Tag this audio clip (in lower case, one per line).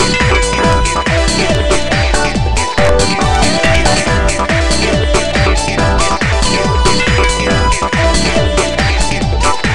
music
pop music
funk